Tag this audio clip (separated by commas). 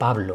Human voice